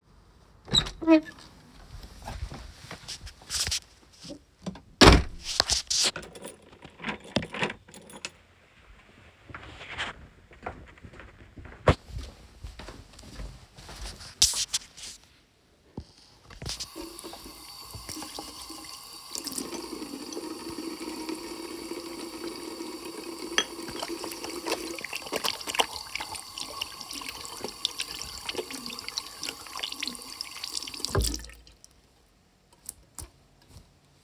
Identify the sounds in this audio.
door, footsteps, keys, running water, cutlery and dishes